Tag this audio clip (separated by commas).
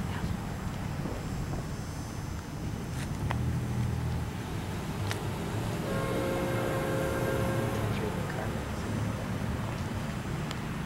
Speech